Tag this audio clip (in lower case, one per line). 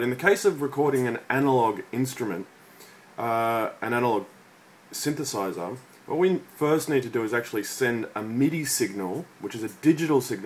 speech